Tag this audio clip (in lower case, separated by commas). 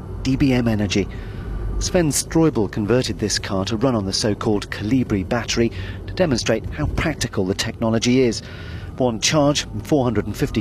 speech